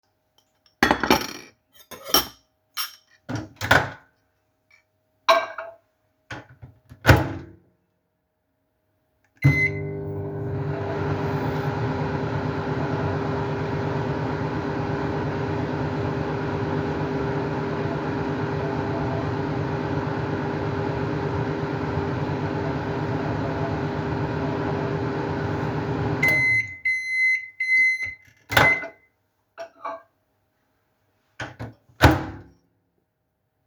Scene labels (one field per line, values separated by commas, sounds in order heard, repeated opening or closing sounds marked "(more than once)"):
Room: kitchen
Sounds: cutlery and dishes, microwave